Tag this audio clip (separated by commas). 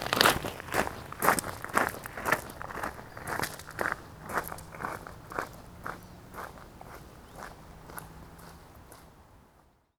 footsteps